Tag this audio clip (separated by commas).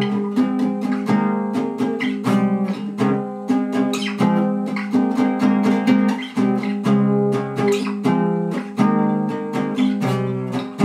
Plucked string instrument, Musical instrument, Strum, Guitar, Music